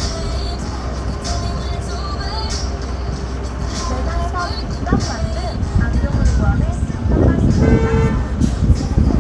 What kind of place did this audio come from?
street